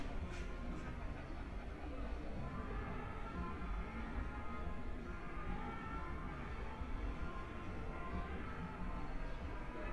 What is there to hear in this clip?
music from an unclear source, person or small group talking